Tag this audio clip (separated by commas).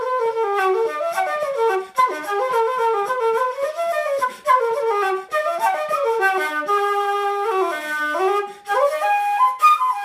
Wind instrument, Music, inside a small room, Flute